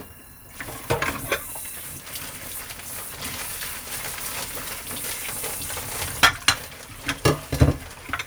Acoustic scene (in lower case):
kitchen